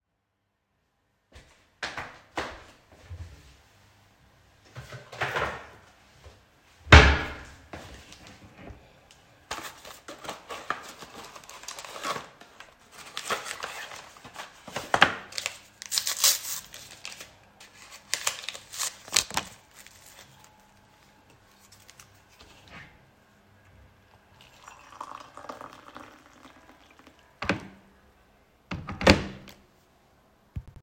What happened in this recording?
I opened the cupboard, took out the tea box and then closed the cupboard. I picked up one of the tea bags in the box, teared up the paper package of the tea bag and put the tea bag into a mug. I picked up the kettle to pour water into the mug. At last, I put the kettle back to the kettle stand.